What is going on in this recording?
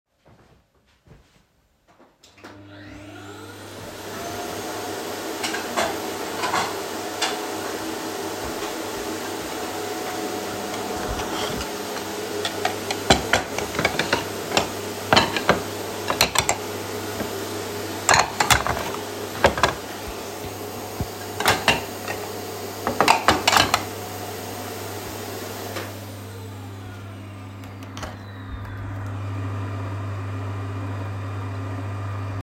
My mom vacuumed while my dad was preparing food in the microwave while I was sorting the plates.